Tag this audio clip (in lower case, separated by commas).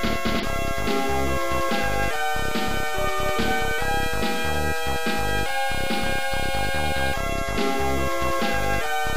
music, soundtrack music